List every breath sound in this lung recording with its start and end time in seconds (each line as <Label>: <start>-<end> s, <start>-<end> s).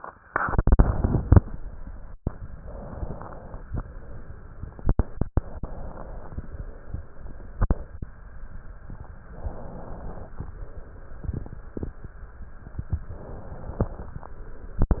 Inhalation: 2.55-3.67 s, 5.23-6.36 s, 9.32-10.44 s, 13.08-14.20 s